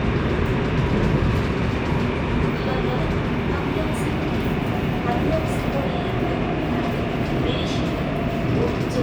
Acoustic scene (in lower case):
subway train